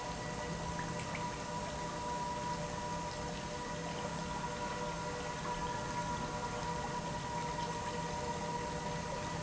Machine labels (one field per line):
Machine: pump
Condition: normal